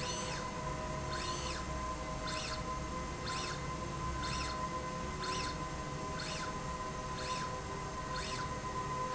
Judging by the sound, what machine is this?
slide rail